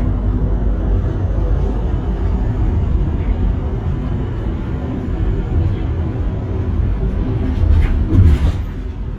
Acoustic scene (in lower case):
bus